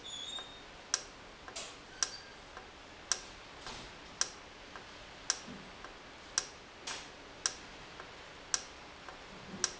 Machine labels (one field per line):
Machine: valve